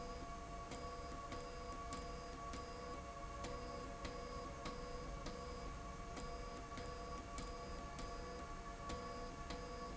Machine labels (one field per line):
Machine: slide rail